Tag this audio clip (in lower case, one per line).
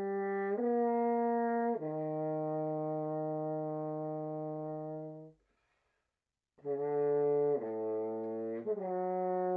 playing french horn